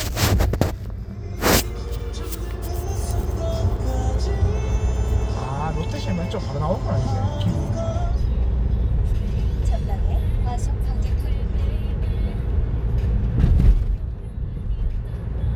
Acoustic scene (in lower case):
car